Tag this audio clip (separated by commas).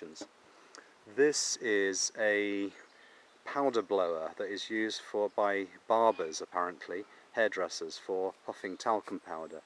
Speech